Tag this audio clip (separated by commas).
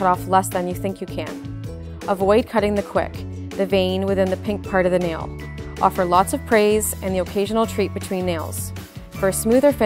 Speech, Music